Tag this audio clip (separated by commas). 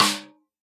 Music, Drum, Musical instrument, Snare drum, Percussion